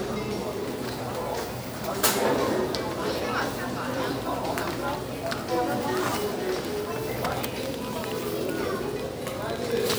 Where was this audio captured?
in a crowded indoor space